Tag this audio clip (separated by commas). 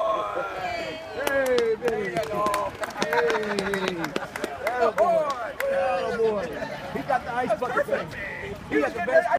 Speech